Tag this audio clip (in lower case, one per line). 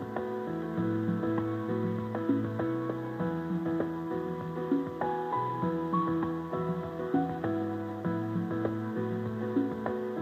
music